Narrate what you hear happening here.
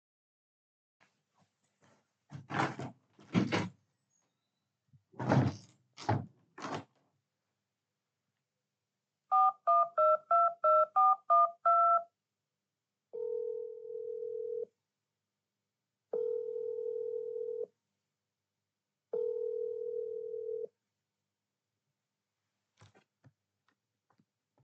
I opened the window and then closed it, then I took my phone and dialed a number with the numpad and called it